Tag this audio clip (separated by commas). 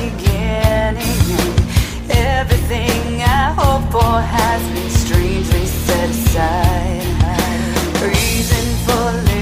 Music